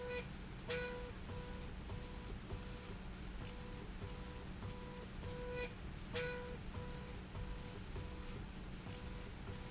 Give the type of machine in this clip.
slide rail